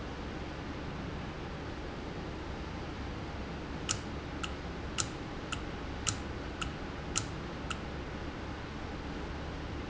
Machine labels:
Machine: valve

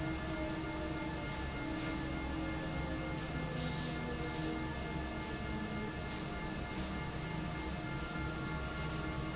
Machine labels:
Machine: fan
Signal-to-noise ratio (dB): -6 dB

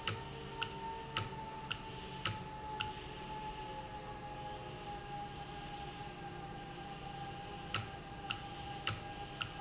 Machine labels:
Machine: valve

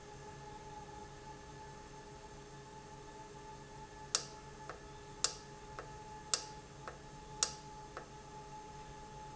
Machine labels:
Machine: valve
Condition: normal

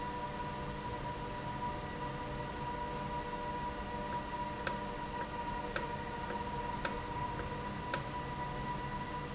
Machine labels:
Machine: valve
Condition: normal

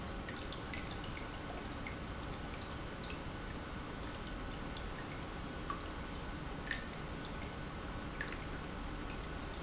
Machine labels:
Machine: pump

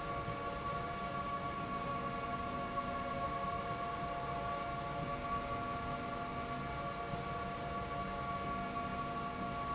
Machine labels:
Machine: slide rail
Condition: normal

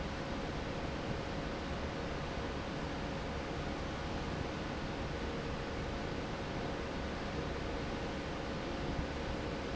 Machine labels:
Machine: fan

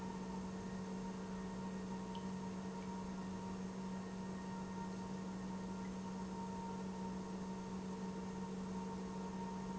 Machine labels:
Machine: pump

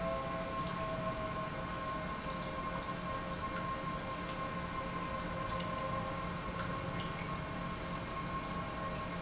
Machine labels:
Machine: pump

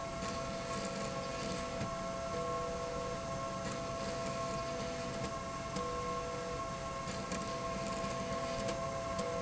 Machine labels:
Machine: slide rail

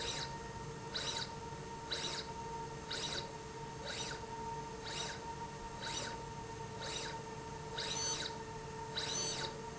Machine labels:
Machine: slide rail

